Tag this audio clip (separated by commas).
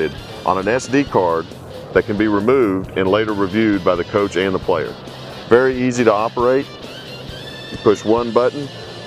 Music, Speech